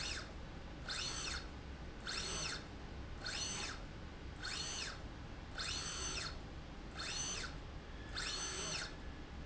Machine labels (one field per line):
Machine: slide rail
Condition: normal